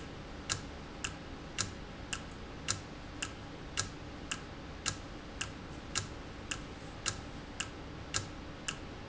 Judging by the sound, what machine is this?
valve